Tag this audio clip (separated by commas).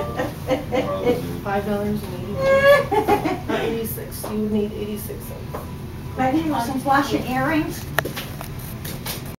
Speech